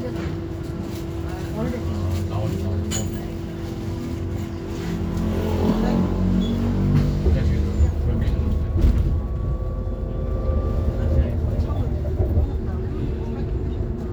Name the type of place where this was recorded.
bus